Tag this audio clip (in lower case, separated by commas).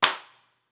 hands, clapping